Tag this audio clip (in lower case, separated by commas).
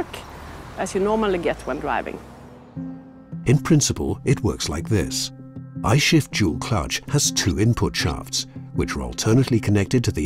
speech, music